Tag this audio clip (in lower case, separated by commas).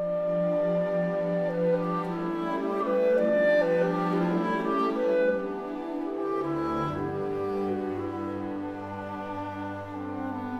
music